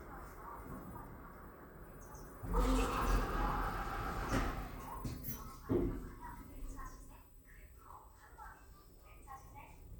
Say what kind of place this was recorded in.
elevator